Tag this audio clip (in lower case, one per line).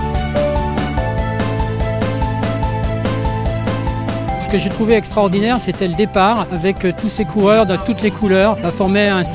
music